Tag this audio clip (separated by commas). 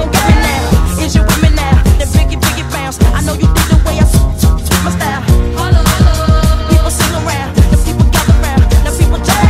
Music, Exciting music